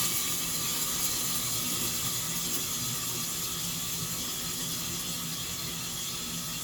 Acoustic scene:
kitchen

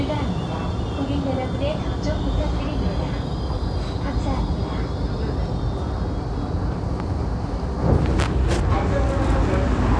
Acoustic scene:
subway train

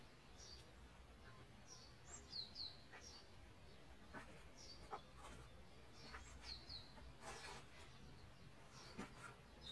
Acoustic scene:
park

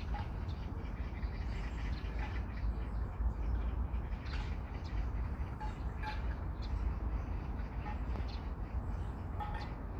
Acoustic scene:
park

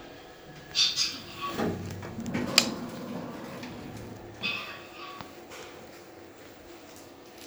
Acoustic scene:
elevator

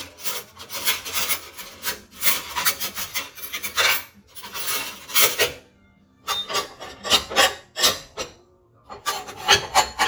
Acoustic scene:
kitchen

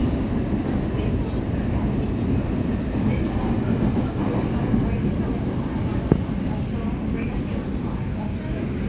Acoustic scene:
subway train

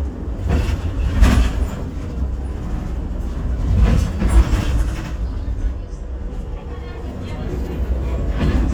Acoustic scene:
bus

